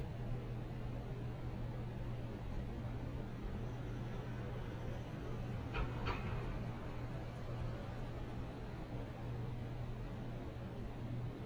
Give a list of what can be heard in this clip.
background noise